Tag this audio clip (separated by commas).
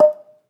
Musical instrument, Mallet percussion, Music, Percussion, xylophone